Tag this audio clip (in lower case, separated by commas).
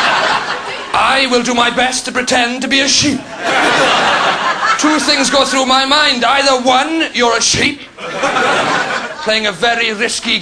speech